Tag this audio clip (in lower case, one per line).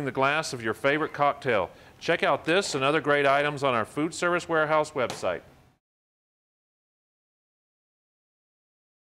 speech